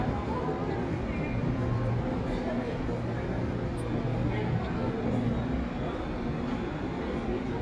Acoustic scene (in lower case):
subway station